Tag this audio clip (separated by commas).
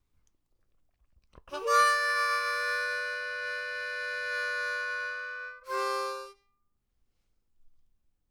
Harmonica, Music, Musical instrument